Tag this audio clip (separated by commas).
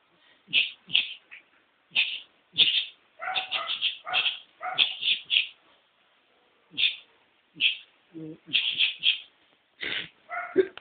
inside a small room, Animal, Domestic animals